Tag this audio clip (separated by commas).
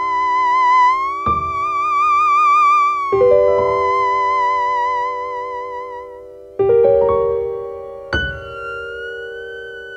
playing theremin